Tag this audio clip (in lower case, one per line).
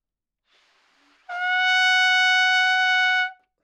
musical instrument
brass instrument
music
trumpet